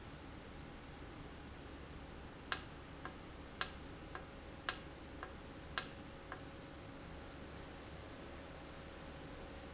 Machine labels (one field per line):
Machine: valve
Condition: normal